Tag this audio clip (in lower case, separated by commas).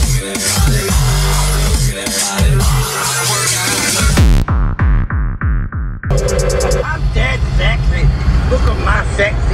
dubstep, speech, music